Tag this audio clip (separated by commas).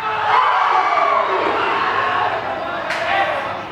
Shout, Human voice, Human group actions, Cheering